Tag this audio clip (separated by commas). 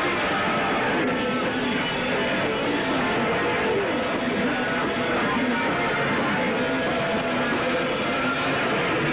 Speech, Music